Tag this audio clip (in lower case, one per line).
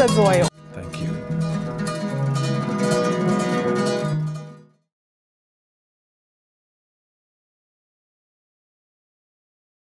speech
music